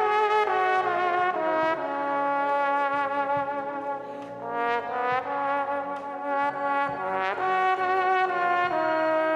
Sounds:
playing trombone

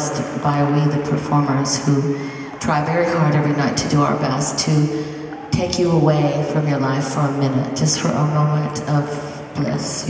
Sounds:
Speech, Female speech

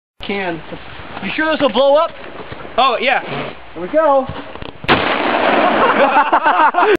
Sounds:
Speech

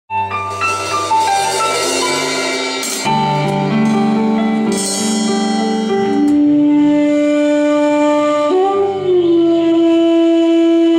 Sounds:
Musical instrument, Flute, Music

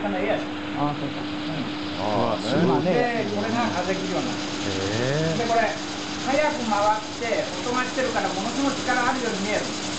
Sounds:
Speech

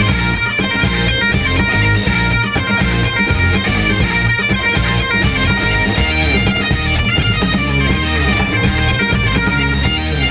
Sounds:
playing bagpipes

